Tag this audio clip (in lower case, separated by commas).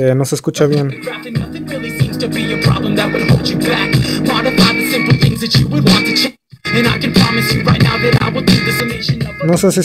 music, speech, inside a small room